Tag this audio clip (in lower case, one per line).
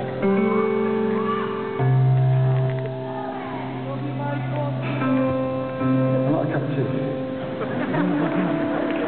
speech
music